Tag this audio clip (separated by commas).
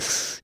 Respiratory sounds, Breathing